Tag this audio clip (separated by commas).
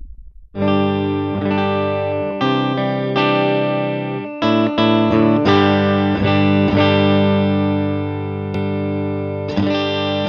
Guitar, Plucked string instrument, Musical instrument, Effects unit, Music, Distortion